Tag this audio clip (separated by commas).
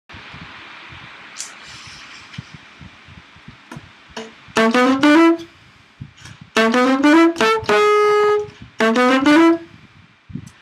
woodwind instrument, Saxophone, Musical instrument, Jazz, Music, inside a small room, playing saxophone